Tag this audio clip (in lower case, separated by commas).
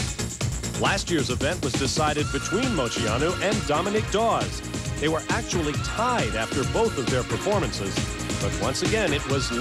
speech, music